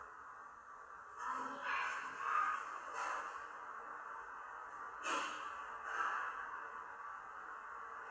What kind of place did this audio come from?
elevator